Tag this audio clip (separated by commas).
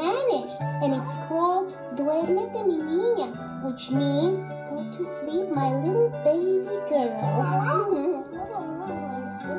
Background music, Music, Speech